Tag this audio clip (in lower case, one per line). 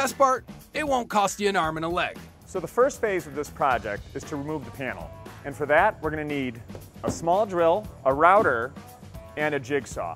music
speech